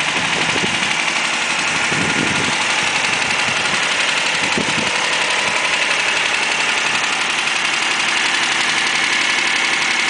The engine is running on a vehicle